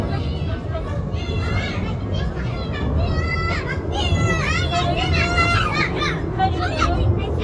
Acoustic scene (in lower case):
residential area